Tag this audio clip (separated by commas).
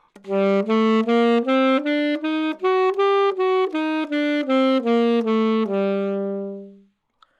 Musical instrument, Wind instrument, Music